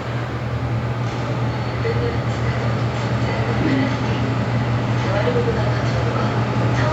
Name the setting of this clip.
elevator